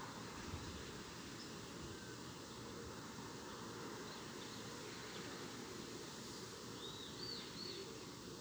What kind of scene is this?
park